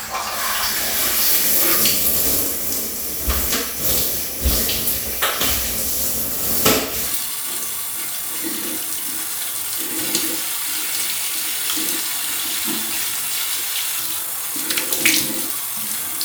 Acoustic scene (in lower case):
restroom